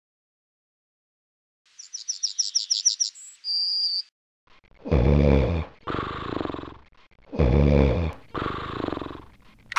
Birds chirping followed by a man snoring and an alarm clock ringing